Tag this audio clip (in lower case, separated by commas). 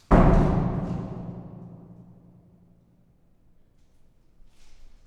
home sounds, slam, door